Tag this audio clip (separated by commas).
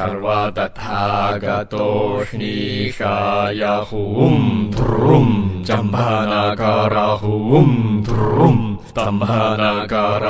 Mantra